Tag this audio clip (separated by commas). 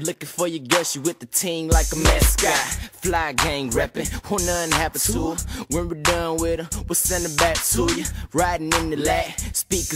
Music, Pop music